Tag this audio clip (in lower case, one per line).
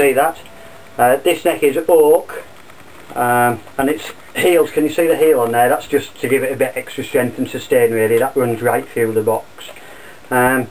speech